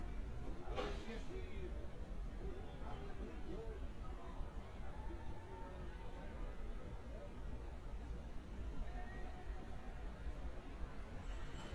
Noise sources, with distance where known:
person or small group talking, far

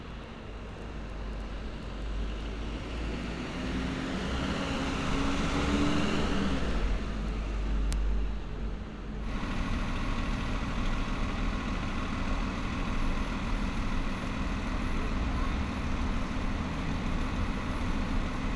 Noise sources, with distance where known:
engine of unclear size

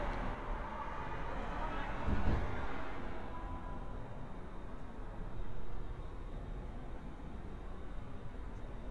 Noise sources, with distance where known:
unidentified human voice, far

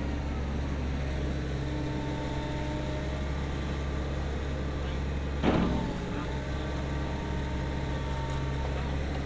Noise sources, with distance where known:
large-sounding engine

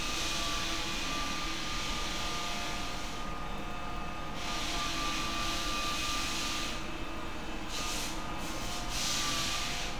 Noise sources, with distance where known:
unidentified powered saw

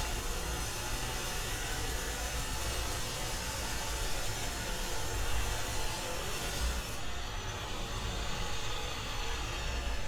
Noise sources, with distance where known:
rock drill

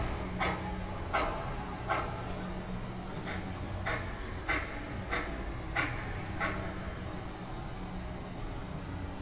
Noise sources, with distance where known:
pile driver

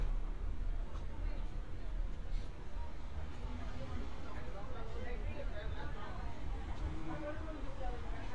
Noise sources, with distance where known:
person or small group talking, far

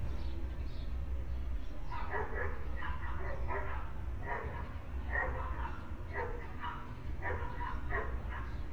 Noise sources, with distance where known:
dog barking or whining, near

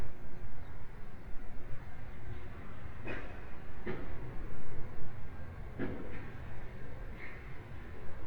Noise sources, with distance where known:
non-machinery impact, near

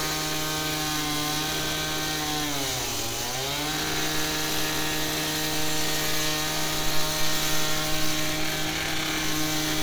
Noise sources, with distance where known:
unidentified powered saw, near

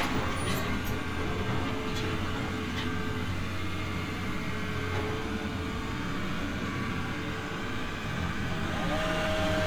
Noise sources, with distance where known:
unidentified impact machinery, near
unidentified powered saw

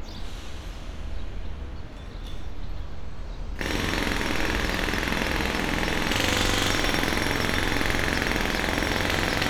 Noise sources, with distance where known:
jackhammer, near

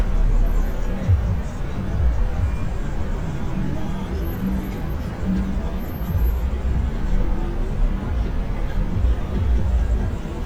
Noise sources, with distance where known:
music from an unclear source

